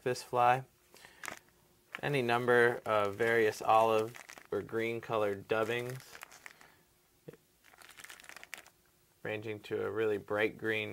A man speaking with a plastic rattling